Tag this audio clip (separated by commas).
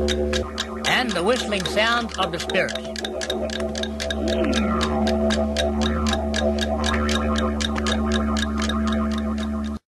Speech, Music